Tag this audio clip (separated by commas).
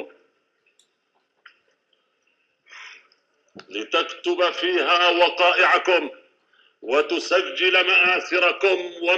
Narration, Speech, man speaking